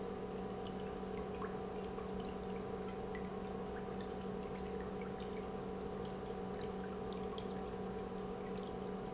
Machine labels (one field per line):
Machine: pump